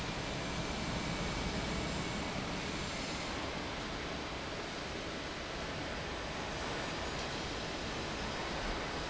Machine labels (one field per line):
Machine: fan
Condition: abnormal